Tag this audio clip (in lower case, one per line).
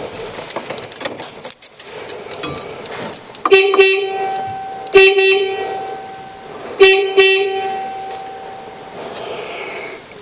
vehicle horn